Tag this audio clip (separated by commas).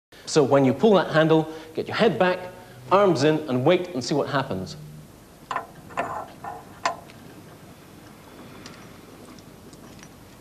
Speech